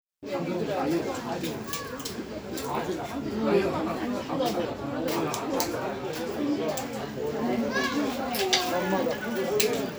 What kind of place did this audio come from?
park